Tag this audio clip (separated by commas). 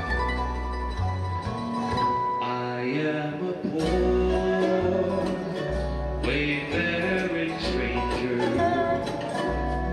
Music, Male singing